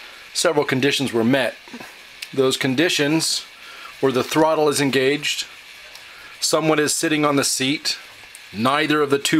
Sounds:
Speech

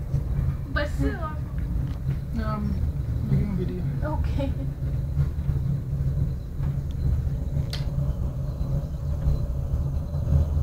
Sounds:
Speech

